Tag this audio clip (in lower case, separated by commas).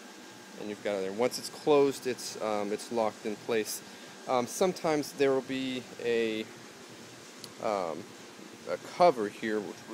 speech